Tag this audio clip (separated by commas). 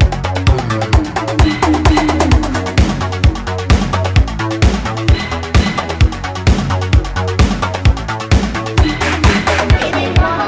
Music